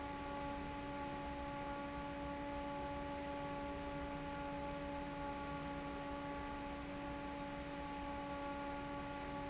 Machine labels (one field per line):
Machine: fan